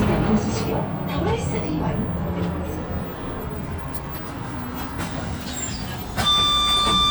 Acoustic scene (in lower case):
bus